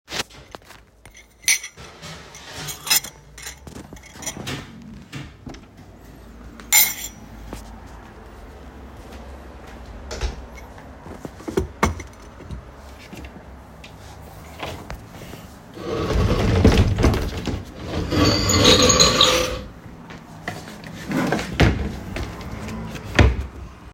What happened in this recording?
I made a coffee in the kitchen and then through hallway I gone to my bedroom and then I searched for an clothes in drawer and in wardrobe.